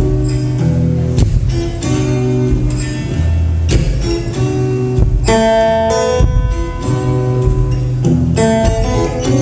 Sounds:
plucked string instrument, musical instrument, music, guitar, electric guitar, strum

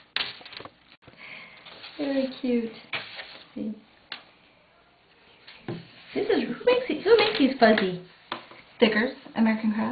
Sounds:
inside a small room, speech

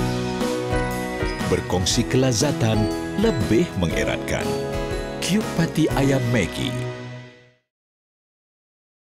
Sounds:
music, speech

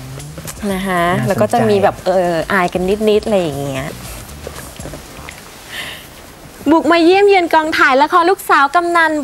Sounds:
speech

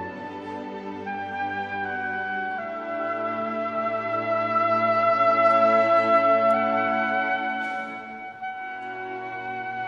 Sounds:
playing oboe

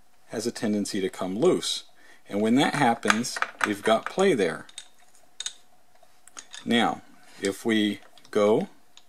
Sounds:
speech, inside a small room

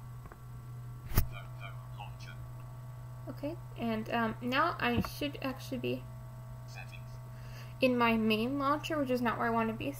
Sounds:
speech

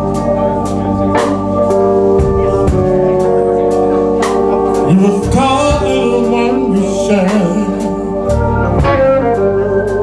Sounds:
music

